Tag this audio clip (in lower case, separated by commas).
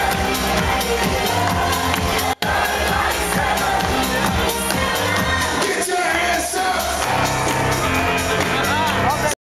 music, speech